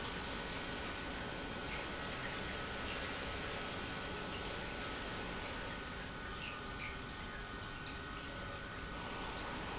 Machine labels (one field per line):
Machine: pump